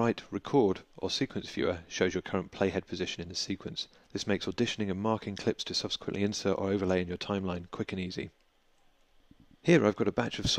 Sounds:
speech

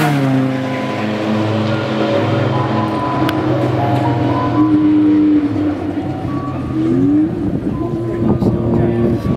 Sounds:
music, car, auto racing, vehicle

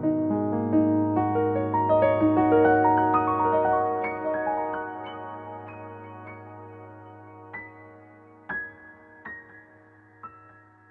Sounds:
music

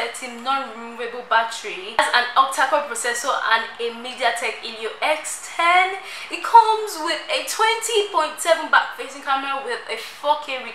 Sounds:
speech

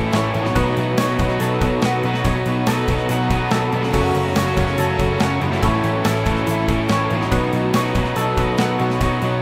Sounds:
music

